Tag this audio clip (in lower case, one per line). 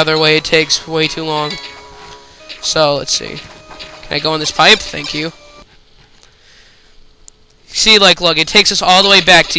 speech